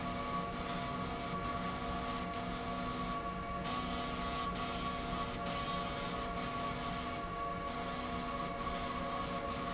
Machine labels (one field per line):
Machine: slide rail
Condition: abnormal